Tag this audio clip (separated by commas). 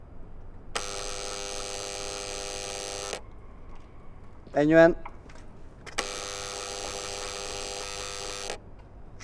Domestic sounds, Door, Alarm